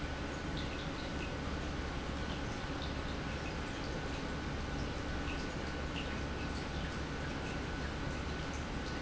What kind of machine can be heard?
pump